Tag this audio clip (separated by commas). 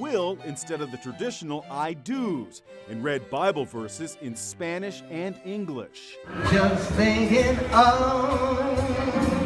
Speech, Music, inside a large room or hall